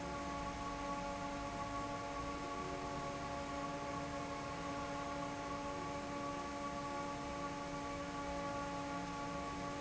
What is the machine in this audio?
fan